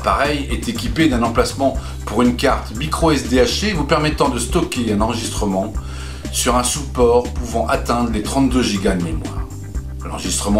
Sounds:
Music, Speech

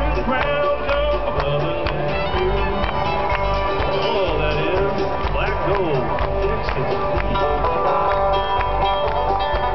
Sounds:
Country, Music

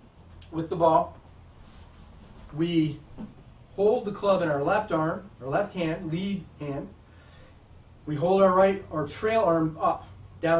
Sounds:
Speech

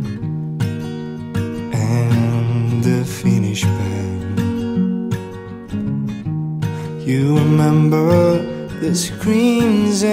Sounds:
Music

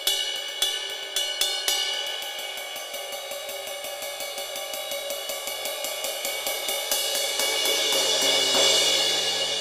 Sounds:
Hi-hat, Music, Musical instrument

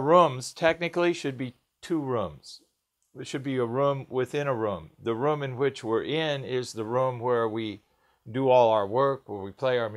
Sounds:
Speech

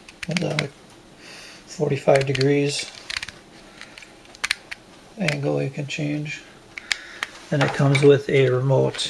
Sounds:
Speech

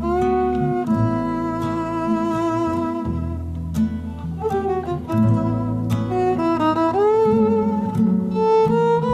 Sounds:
Jazz, Music, Musical instrument, fiddle

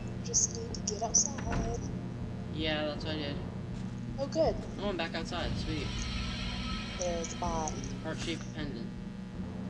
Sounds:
Speech

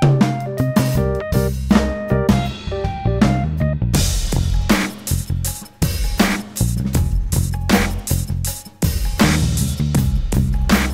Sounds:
Music

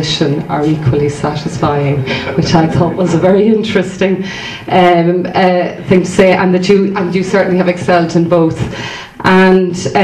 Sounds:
Speech

